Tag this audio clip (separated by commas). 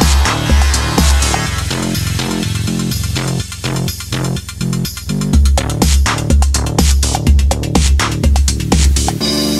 Electronica, Music